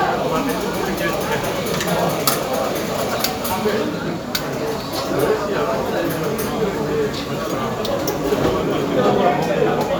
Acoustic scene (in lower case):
cafe